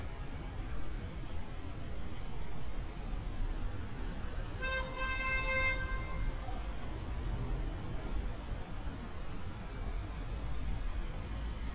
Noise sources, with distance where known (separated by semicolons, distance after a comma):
car horn, near